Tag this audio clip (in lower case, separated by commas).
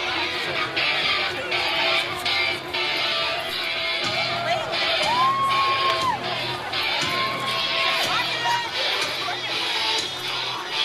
speech, music, guitar, electric guitar, strum, musical instrument, plucked string instrument